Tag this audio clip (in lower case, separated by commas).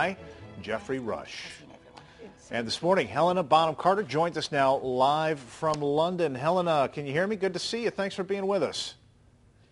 music, man speaking, speech